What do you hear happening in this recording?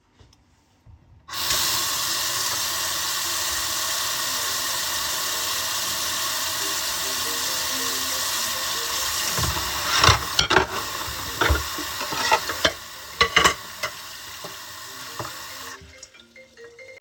I was in the kitchen washing dishes at the sink. Running water was audible while I handled the dishes and cutlery. During the scene, my phone started ringing in the background.